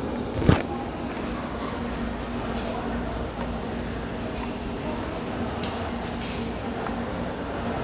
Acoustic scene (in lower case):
crowded indoor space